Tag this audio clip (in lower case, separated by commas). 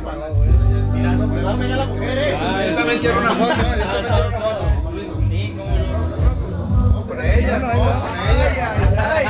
music, speech